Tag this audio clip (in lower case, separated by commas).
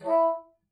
musical instrument, music, woodwind instrument